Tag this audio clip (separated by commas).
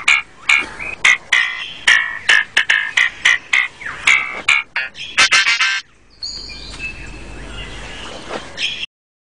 Bird, Music